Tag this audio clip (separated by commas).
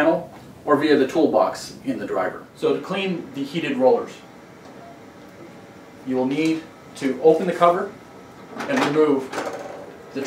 Speech